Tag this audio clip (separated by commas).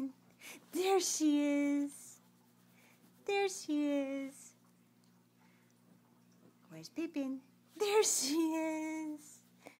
Speech